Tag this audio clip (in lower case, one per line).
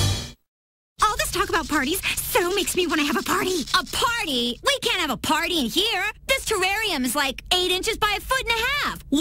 speech